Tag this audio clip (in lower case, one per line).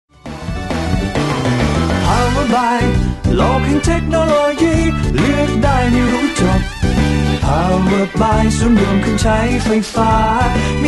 happy music
music